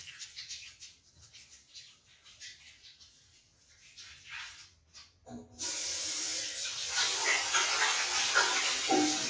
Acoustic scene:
restroom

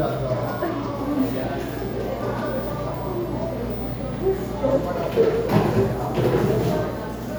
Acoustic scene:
cafe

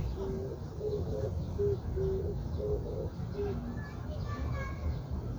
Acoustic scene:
park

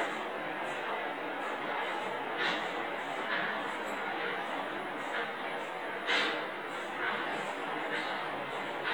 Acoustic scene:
elevator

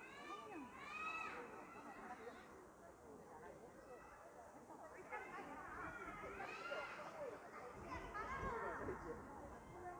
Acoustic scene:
park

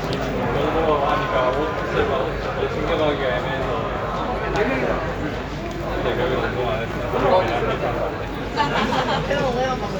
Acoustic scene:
crowded indoor space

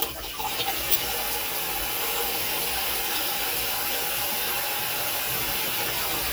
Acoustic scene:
kitchen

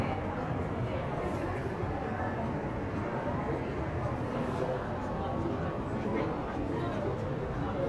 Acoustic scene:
crowded indoor space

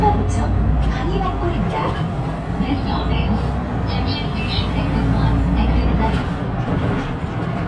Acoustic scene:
bus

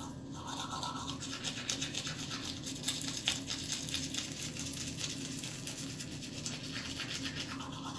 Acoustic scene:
restroom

